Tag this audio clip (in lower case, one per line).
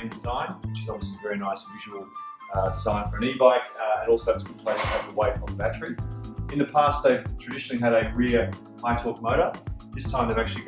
speech
music